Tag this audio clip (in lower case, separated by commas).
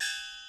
gong, music, percussion, musical instrument